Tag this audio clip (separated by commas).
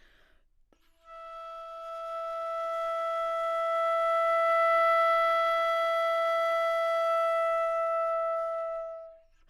Wind instrument, Musical instrument, Music